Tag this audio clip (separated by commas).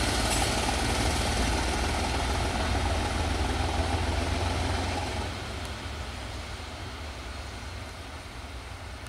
Rail transport, Railroad car, Vehicle, Train